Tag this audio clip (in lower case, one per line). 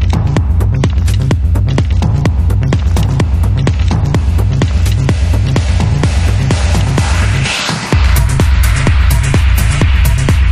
music